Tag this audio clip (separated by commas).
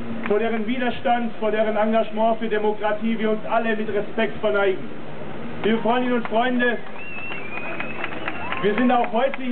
Narration, Speech, man speaking